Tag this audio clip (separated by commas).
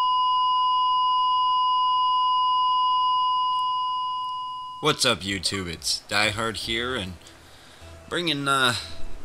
Sine wave, Chirp tone